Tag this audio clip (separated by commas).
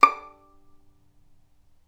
Musical instrument, Bowed string instrument, Music